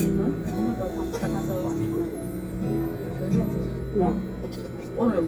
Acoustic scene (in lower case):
crowded indoor space